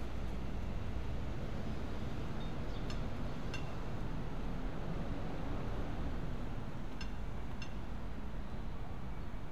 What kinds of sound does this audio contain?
engine of unclear size